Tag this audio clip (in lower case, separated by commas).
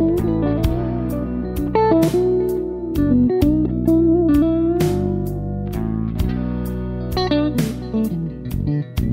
musical instrument, inside a small room, bass guitar, plucked string instrument, guitar, music